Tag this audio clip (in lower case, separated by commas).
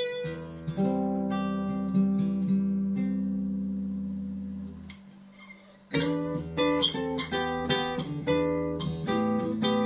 guitar, plucked string instrument, musical instrument, music, acoustic guitar